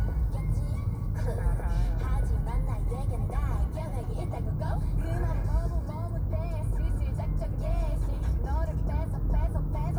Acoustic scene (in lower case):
car